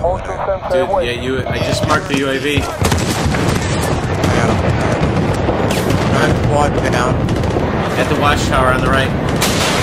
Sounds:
Speech

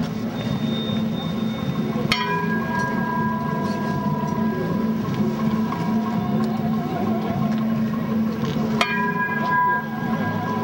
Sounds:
Tubular bells

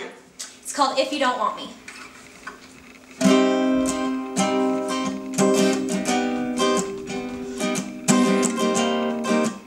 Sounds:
Musical instrument, Guitar, Music

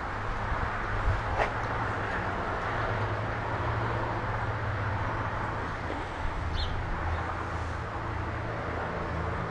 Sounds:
Animal

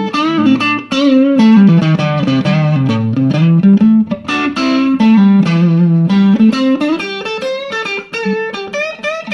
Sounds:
Music

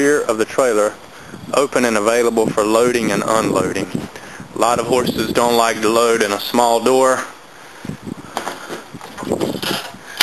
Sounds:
outside, rural or natural, Speech

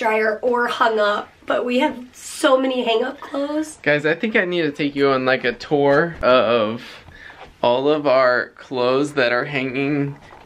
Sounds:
people coughing

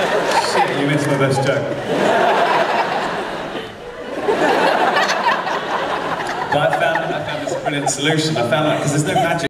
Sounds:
Speech

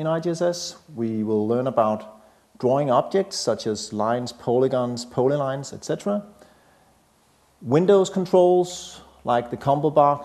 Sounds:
Speech

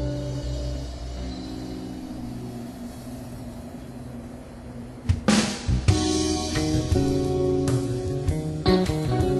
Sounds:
Music

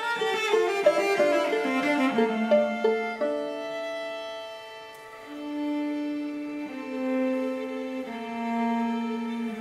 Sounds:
String section

